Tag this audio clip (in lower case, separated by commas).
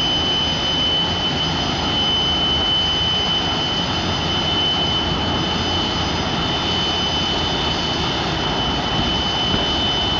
vehicle